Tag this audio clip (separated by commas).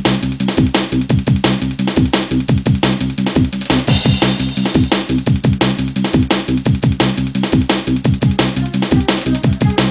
Music, Drum and bass